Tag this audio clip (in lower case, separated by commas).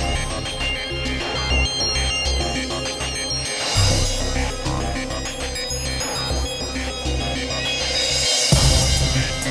music